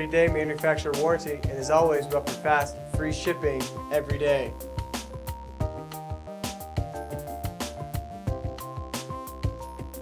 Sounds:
speech
music

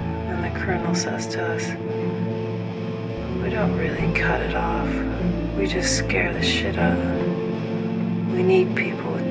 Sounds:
music
speech

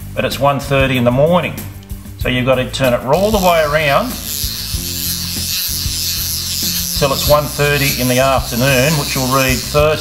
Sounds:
music
speech

